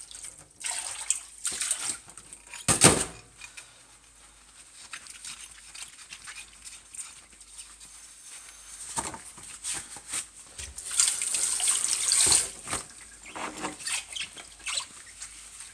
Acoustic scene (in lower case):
kitchen